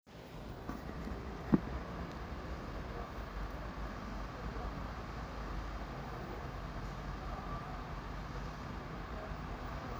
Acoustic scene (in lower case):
residential area